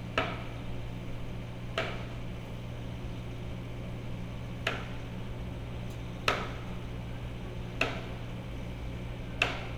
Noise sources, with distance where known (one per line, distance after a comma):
engine of unclear size, near